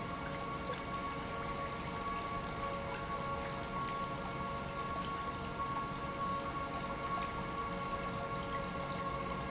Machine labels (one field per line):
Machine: pump